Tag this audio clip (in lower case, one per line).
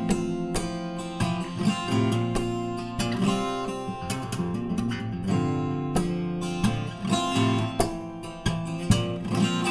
guitar
music
plucked string instrument
musical instrument
strum